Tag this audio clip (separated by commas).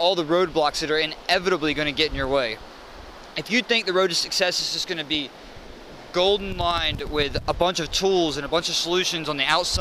Speech